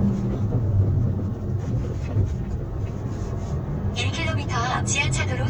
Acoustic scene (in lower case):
car